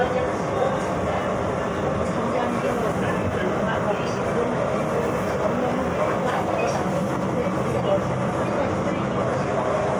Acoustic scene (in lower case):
subway train